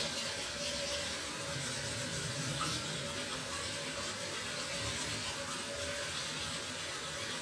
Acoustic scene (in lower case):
restroom